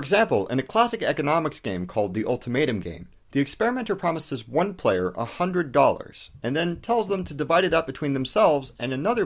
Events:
[0.00, 3.06] man speaking
[0.00, 9.25] background noise
[3.33, 9.25] man speaking

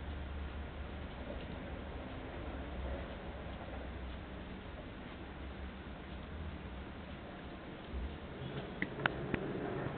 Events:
[0.00, 9.95] mechanisms
[1.01, 1.16] tick
[1.31, 1.47] tick
[3.43, 3.61] tick
[4.07, 4.21] tick
[8.53, 8.66] generic impact sounds
[8.81, 8.86] generic impact sounds
[9.00, 9.12] generic impact sounds
[9.28, 9.41] generic impact sounds

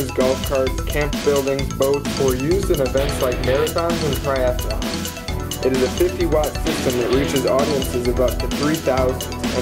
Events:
[0.00, 9.61] music
[0.17, 0.66] man speaking
[0.91, 1.59] man speaking
[1.78, 4.73] man speaking
[5.61, 9.12] man speaking

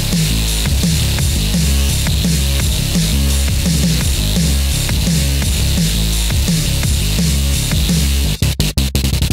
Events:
[0.00, 9.32] music

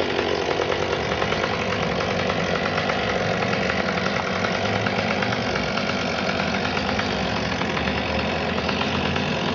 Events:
[0.00, 9.54] chainsaw

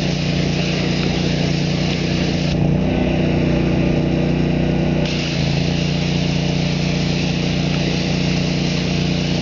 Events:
[0.00, 2.49] spray
[0.00, 9.41] engine
[0.95, 1.07] tick
[1.83, 1.96] tick
[5.03, 9.41] spray
[7.65, 7.78] tick
[8.23, 8.34] tick
[8.70, 8.84] tick

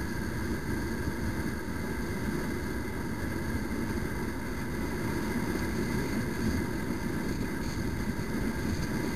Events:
[0.00, 9.15] motorcycle
[0.00, 9.15] wind

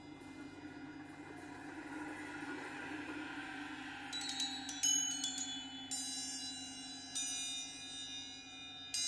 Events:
[0.00, 9.05] music

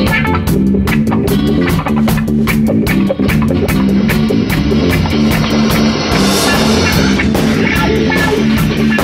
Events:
[0.00, 9.03] music
[3.69, 9.03] mechanisms

